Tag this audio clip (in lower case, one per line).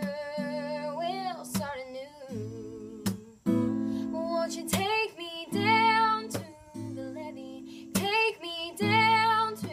music